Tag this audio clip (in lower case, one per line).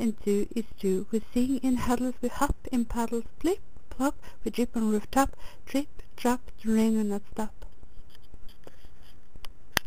speech